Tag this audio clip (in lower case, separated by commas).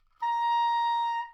musical instrument, wind instrument, music